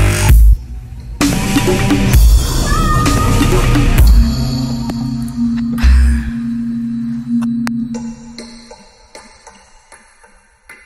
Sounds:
Music, Speech

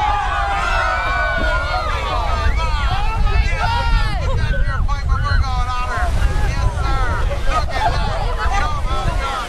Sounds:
Speech

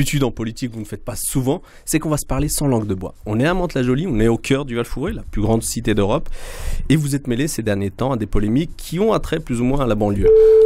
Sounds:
Speech

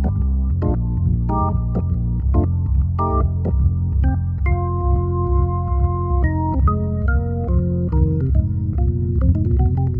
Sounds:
playing hammond organ, Hammond organ, Organ

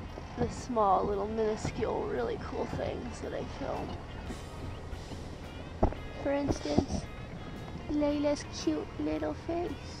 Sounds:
Speech, Music

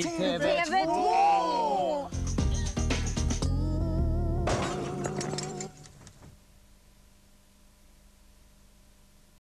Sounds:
Music, Speech

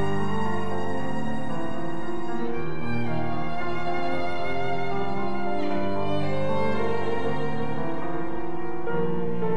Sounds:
fiddle, Musical instrument, Music

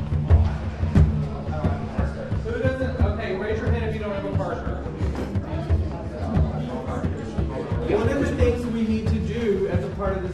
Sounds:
Speech

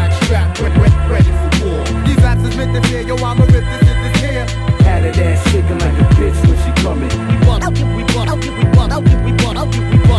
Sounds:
Music, Soul music, Blues, Disco, Rhythm and blues

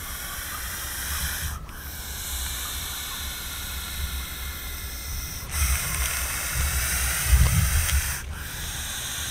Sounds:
snake hissing

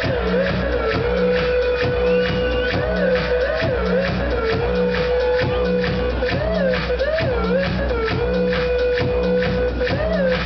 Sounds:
Music

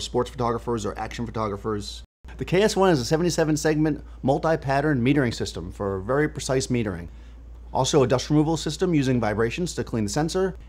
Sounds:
Speech

